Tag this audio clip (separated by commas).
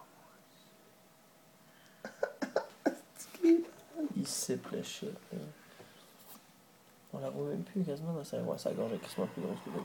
Speech